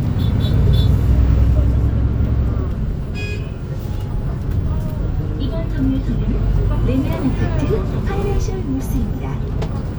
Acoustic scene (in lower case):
bus